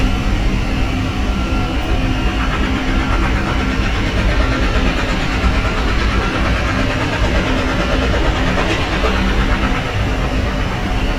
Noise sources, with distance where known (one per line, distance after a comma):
large-sounding engine, near
jackhammer